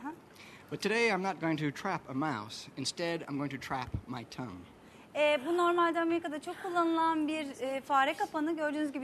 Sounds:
speech

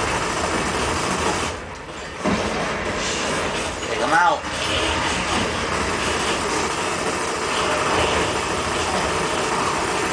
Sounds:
speech

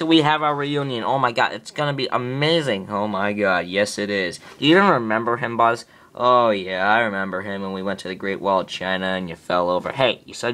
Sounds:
speech

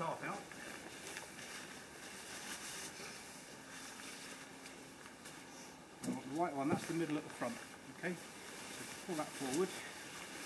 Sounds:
speech

